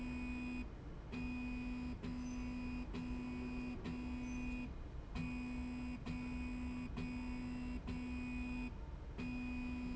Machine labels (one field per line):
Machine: slide rail